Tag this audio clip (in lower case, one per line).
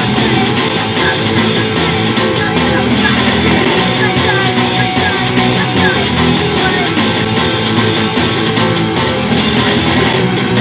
music
rhythm and blues
blues